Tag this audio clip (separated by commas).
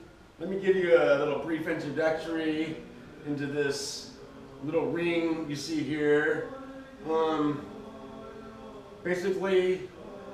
Speech